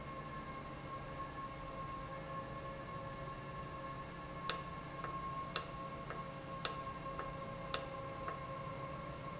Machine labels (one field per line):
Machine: valve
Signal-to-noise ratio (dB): 0 dB